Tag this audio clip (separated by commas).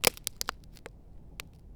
Crack